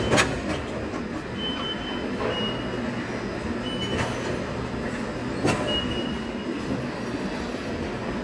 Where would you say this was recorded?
in a subway station